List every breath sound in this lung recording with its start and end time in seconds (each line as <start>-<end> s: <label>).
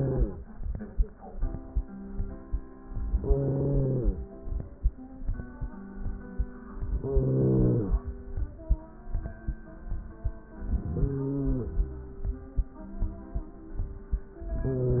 0.00-0.42 s: inhalation
3.16-4.34 s: inhalation
6.88-8.07 s: inhalation
10.68-11.87 s: inhalation
14.41-15.00 s: inhalation